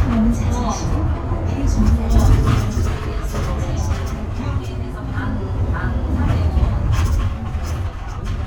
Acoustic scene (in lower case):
bus